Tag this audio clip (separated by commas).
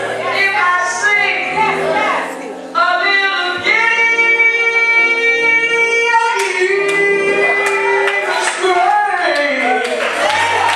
Music, Speech